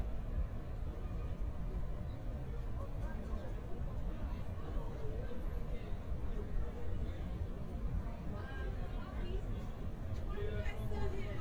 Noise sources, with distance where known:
person or small group talking

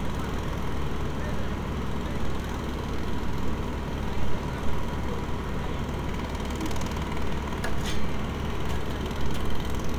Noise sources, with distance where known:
jackhammer, near; unidentified human voice

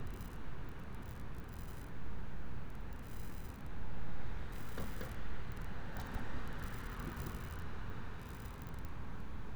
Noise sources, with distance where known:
background noise

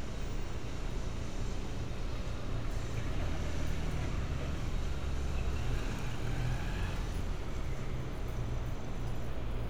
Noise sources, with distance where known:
large-sounding engine

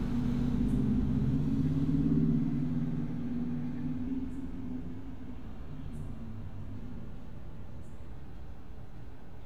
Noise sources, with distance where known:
engine of unclear size, far

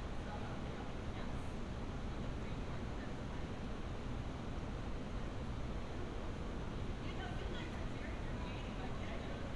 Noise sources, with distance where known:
person or small group talking, far

